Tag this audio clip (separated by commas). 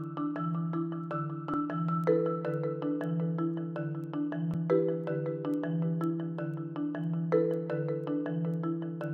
Music